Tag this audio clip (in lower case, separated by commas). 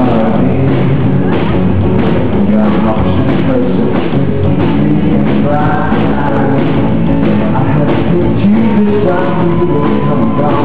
music